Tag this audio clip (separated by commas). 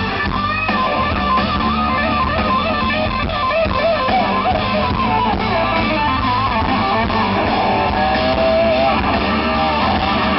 Music